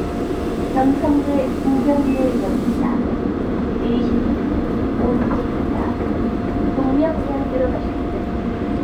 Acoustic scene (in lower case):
subway train